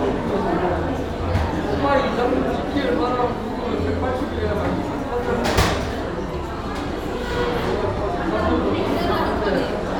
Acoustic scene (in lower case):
cafe